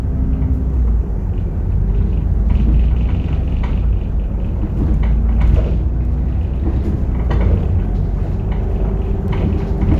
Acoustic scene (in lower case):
bus